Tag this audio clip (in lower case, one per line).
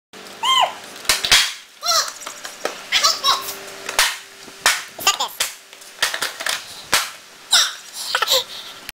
skateboard
speech